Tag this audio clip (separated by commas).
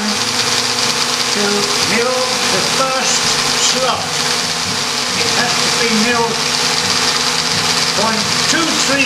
Speech, Music, Tools